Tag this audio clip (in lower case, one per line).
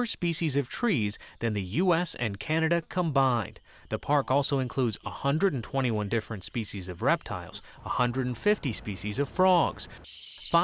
speech